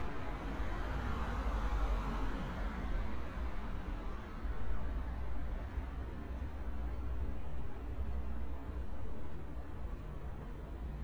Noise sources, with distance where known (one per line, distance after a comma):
engine of unclear size, near